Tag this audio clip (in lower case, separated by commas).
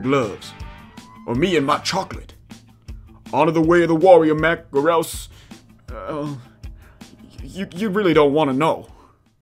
speech, music